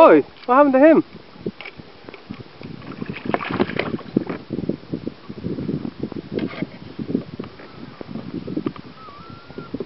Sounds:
speech
vehicle
boat

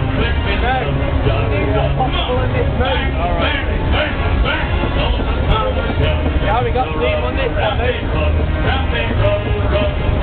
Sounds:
music
speech

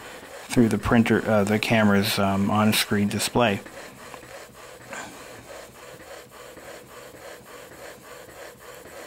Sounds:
printer
speech

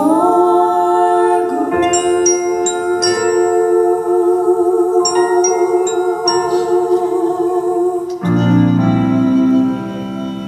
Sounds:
music
singing

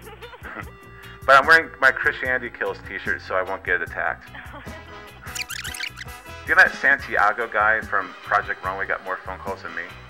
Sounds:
music
speech

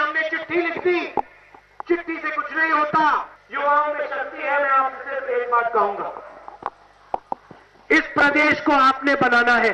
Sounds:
monologue
speech
male speech

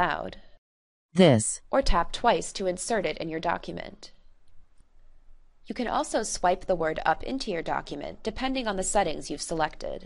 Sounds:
speech

